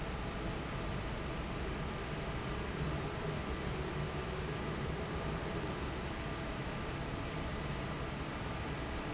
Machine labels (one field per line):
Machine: fan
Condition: normal